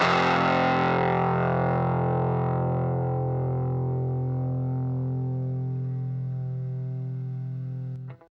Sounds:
musical instrument, guitar, music, plucked string instrument

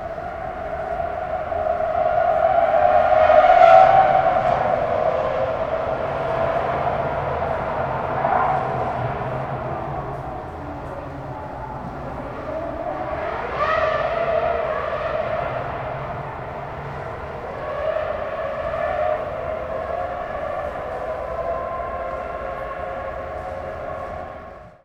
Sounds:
vehicle, race car, car, motor vehicle (road)

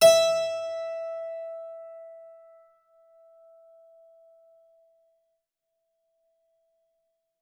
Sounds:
musical instrument, music, keyboard (musical)

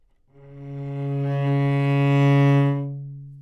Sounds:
bowed string instrument, musical instrument, music

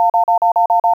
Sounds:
telephone, alarm

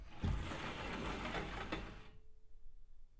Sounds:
door, domestic sounds, sliding door

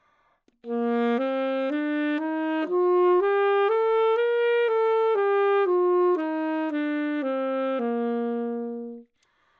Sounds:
music, musical instrument, wind instrument

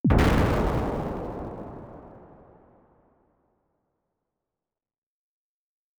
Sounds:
explosion

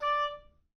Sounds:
musical instrument, music, woodwind instrument

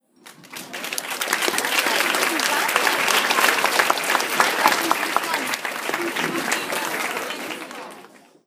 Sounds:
human group actions, crowd, applause

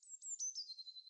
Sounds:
animal, wild animals, bird

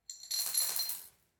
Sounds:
coin (dropping), domestic sounds

